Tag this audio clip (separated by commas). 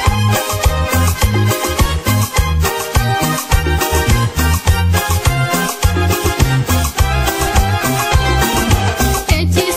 Music